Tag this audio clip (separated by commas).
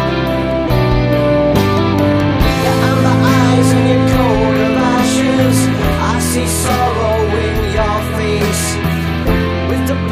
Music